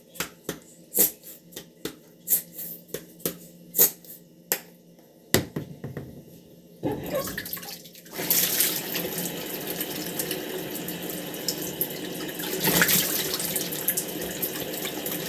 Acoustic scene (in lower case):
restroom